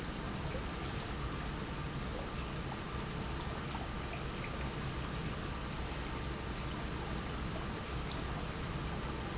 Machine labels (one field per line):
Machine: pump